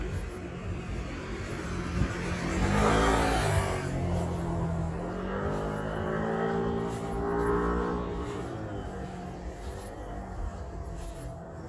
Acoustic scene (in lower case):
residential area